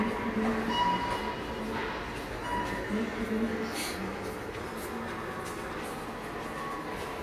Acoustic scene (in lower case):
subway station